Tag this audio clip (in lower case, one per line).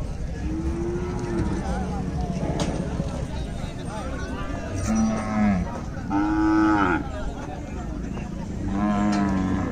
bull bellowing